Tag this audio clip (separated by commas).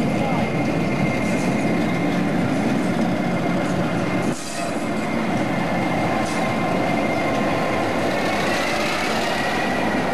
Vehicle, Rail transport, train wagon, Speech, Train